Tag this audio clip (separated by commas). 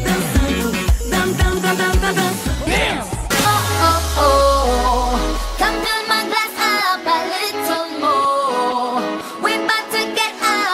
Music